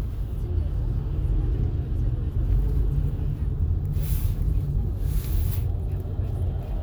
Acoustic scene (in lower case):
car